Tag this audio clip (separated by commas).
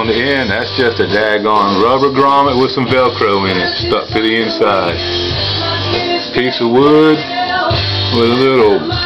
Speech, Music